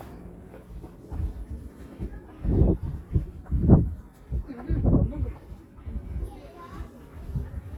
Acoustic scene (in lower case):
park